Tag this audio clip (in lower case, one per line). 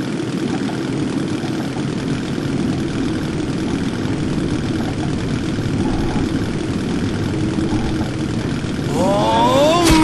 speech